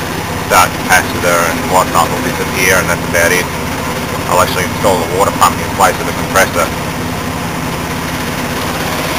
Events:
0.0s-9.1s: air conditioning
0.4s-0.6s: male speech
0.8s-1.0s: male speech
1.2s-1.5s: male speech
1.6s-2.9s: male speech
3.1s-3.4s: male speech
4.2s-4.6s: male speech
4.8s-5.4s: male speech
5.7s-6.1s: male speech
6.3s-6.7s: male speech

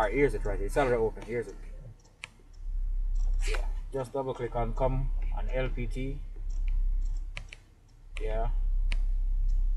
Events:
0.0s-1.2s: rumble
0.0s-1.6s: man speaking
0.0s-9.7s: background noise
0.4s-0.6s: clicking
0.7s-1.0s: sneeze
1.2s-1.5s: computer keyboard
2.0s-2.1s: clicking
2.2s-2.3s: clicking
2.2s-2.3s: computer keyboard
2.5s-2.7s: clicking
2.6s-3.9s: rumble
3.4s-3.7s: sneeze
3.5s-3.8s: computer keyboard
3.9s-5.1s: man speaking
4.5s-7.4s: rumble
5.2s-5.4s: computer keyboard
5.3s-6.2s: man speaking
5.5s-5.7s: computer keyboard
6.5s-6.6s: clicking
7.0s-7.2s: clicking
7.3s-7.6s: computer keyboard
7.8s-8.0s: clicking
8.1s-9.7s: rumble
8.1s-8.5s: man speaking
8.2s-8.5s: computer keyboard
8.9s-9.0s: computer keyboard
9.5s-9.6s: clicking

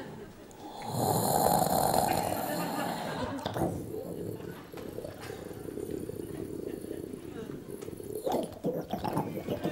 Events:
0.0s-9.7s: crowd
0.0s-9.7s: inside a large room or hall
0.4s-0.6s: clicking
0.7s-3.4s: grunt
2.0s-3.7s: laughter
3.4s-3.8s: human sounds
3.9s-8.2s: grunt
4.7s-4.9s: laughter
5.1s-5.3s: laughter
7.8s-7.9s: generic impact sounds
8.2s-9.7s: human sounds

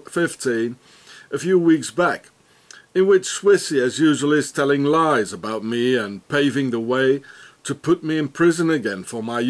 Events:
0.0s-0.7s: man speaking
0.0s-9.4s: mechanisms
0.8s-1.2s: breathing
1.3s-2.3s: man speaking
2.4s-2.8s: breathing
2.7s-2.8s: tick
2.9s-7.2s: man speaking
3.9s-4.0s: tick
7.2s-7.5s: breathing
7.6s-9.4s: man speaking

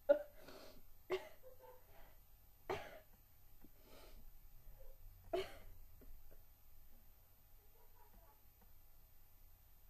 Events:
0.0s-0.3s: cough
0.0s-9.8s: background noise
0.3s-0.7s: sniff
1.0s-1.6s: cough
1.4s-2.1s: bark
1.8s-2.1s: breathing
2.7s-3.0s: cough
3.1s-3.2s: generic impact sounds
3.6s-3.7s: generic impact sounds
3.8s-4.2s: sniff
4.6s-4.8s: sniff
4.8s-4.9s: bark
5.3s-5.4s: human sounds
5.4s-5.7s: breathing
6.0s-6.0s: generic impact sounds
6.3s-6.4s: generic impact sounds
7.6s-8.3s: kid speaking
8.1s-8.2s: generic impact sounds
8.6s-8.7s: generic impact sounds

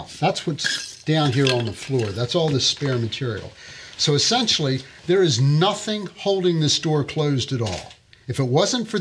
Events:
0.0s-9.0s: background noise
0.2s-0.6s: man speaking
0.6s-1.0s: generic impact sounds
1.1s-3.5s: man speaking
1.4s-1.7s: generic impact sounds
2.0s-2.2s: generic impact sounds
2.4s-2.6s: generic impact sounds
2.8s-3.2s: generic impact sounds
3.3s-3.5s: generic impact sounds
3.5s-4.0s: breathing
4.0s-4.9s: man speaking
5.1s-7.9s: man speaking
7.6s-7.9s: generic impact sounds
8.3s-9.0s: man speaking

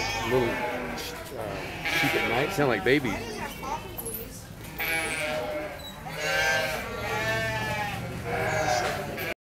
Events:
0.0s-1.1s: bleat
0.0s-9.3s: mechanisms
0.2s-9.3s: conversation
0.2s-0.7s: man speaking
1.3s-1.7s: man speaking
1.5s-4.1s: bleat
1.9s-3.1s: man speaking
2.9s-4.5s: female speech
4.7s-5.9s: bleat
5.1s-9.3s: man speaking
5.7s-6.0s: squeak
6.0s-9.3s: bleat

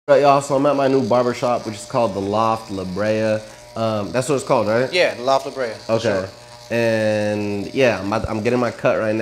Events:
0.1s-3.4s: man speaking
0.1s-9.2s: conversation
0.1s-9.2s: electric razor
3.7s-6.3s: man speaking
6.7s-9.2s: man speaking

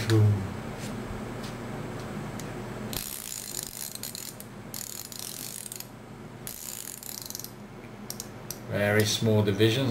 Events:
0.0s-0.4s: human voice
0.0s-9.9s: mechanisms
8.0s-8.2s: pawl
8.6s-9.9s: male speech
8.9s-9.0s: generic impact sounds

